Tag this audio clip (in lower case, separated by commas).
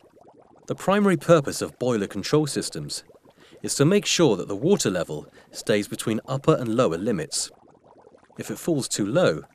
speech